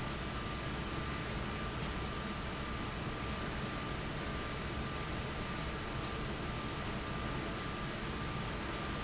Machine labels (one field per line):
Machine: fan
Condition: abnormal